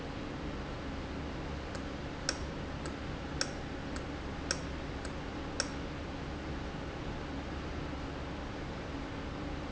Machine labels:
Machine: valve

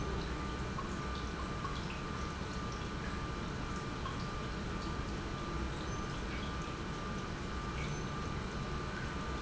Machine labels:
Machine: pump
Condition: normal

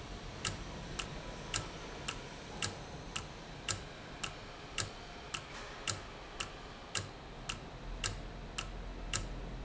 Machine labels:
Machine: valve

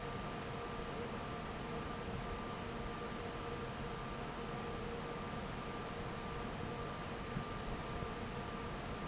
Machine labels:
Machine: fan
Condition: normal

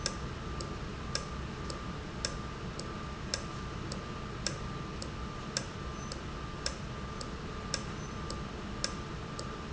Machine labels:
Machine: valve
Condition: normal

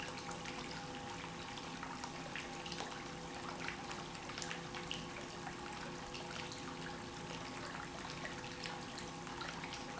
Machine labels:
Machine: pump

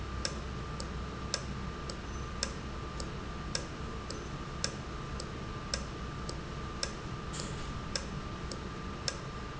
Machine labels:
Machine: valve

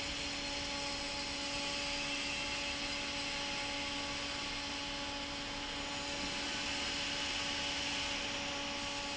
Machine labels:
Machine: fan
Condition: normal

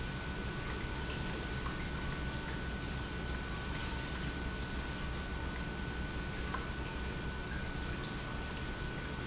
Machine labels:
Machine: pump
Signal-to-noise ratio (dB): -6 dB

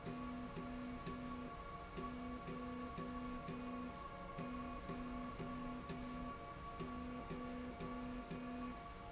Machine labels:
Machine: slide rail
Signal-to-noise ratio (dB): 6 dB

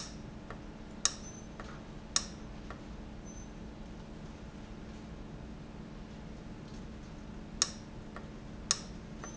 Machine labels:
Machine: valve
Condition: abnormal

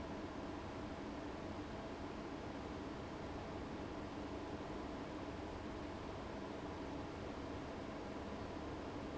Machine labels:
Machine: fan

